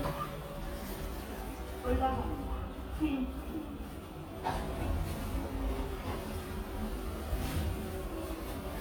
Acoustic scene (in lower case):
elevator